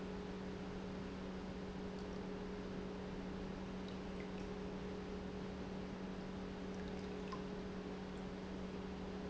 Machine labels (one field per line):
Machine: pump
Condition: normal